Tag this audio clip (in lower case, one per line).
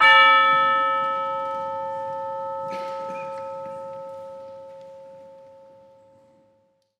percussion
musical instrument
music